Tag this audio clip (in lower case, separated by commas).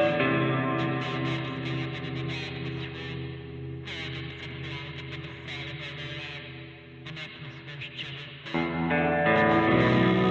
speech, music